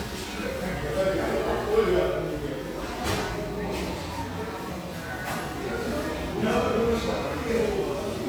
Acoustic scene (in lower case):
cafe